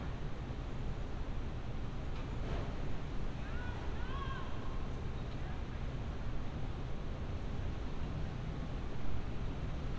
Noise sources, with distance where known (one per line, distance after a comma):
unidentified human voice, far